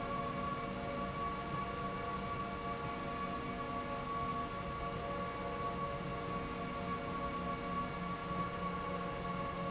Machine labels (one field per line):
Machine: slide rail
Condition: normal